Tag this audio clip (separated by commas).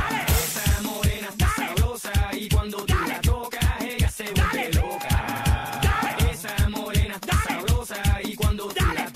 Music, Techno, Electronic music